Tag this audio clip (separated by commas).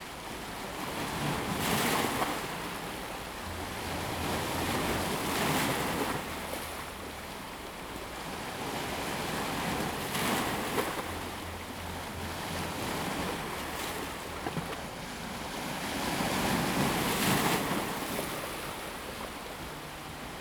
surf, Water, Ocean